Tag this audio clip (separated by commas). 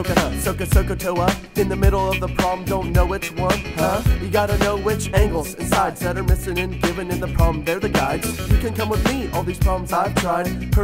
Rapping